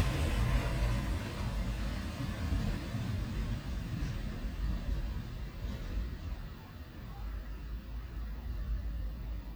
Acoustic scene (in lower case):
residential area